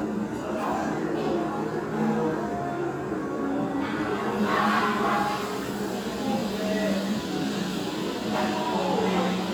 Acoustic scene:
restaurant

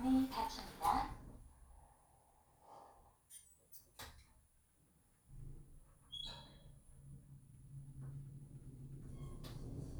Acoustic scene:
elevator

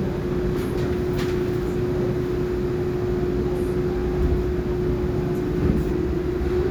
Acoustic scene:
subway train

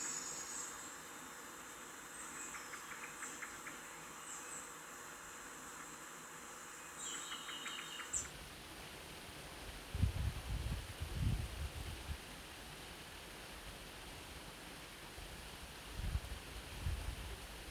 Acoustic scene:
park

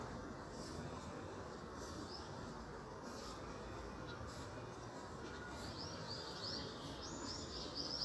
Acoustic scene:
park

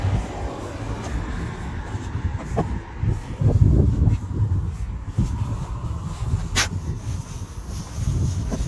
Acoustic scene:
residential area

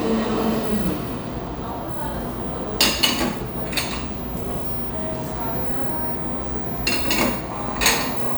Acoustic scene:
cafe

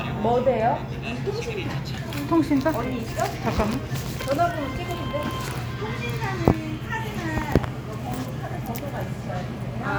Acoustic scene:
cafe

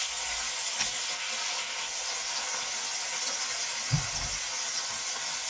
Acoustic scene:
kitchen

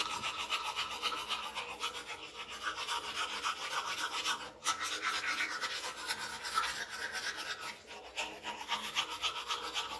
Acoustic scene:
restroom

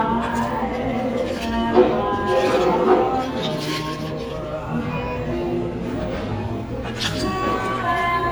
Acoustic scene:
cafe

